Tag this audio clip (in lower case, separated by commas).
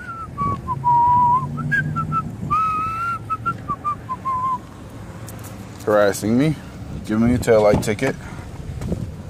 speech